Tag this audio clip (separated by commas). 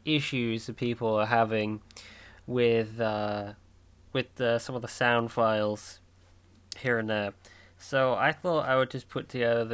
Speech